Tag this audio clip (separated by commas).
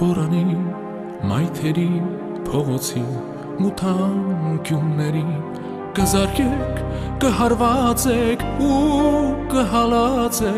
Theme music, Music